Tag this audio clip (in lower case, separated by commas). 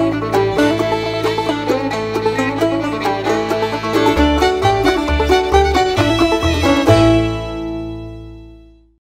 music